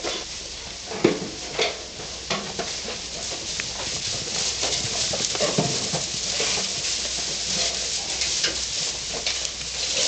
Goats running around a barn